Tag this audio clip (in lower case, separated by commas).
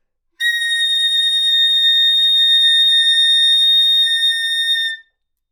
musical instrument, music, woodwind instrument